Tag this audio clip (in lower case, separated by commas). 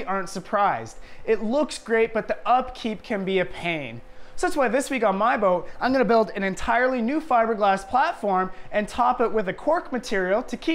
speech